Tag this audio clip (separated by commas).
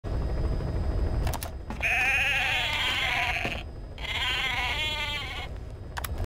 Bleat, Sheep